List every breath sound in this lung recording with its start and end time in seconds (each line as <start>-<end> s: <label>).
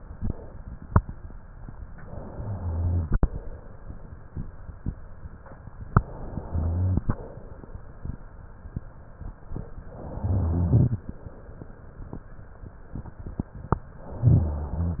1.96-3.38 s: inhalation
5.95-7.37 s: inhalation
9.74-11.16 s: inhalation
14.06-15.00 s: inhalation